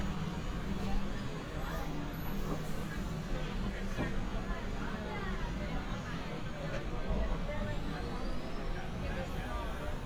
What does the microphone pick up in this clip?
person or small group talking